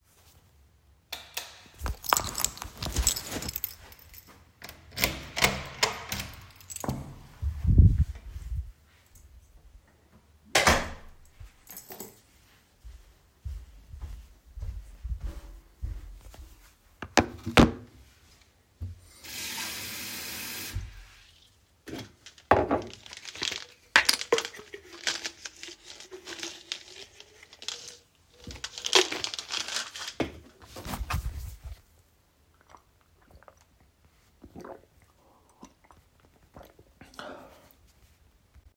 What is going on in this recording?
I turned on the lights, unlocked the door, walked into my flat and closed the door. I left the keys on the table, walked to the kitchen, filled a glass with water, searched for my supplement and drank the water.